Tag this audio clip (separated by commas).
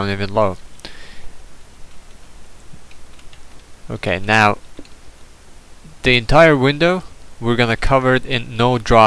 Speech